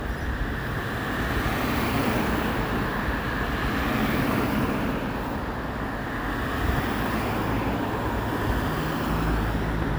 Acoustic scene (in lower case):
street